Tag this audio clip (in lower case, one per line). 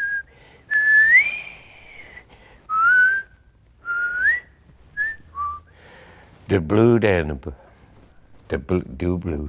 speech
whistling
people whistling
inside a small room